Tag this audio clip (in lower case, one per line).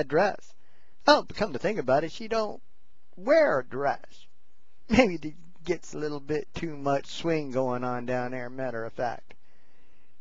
speech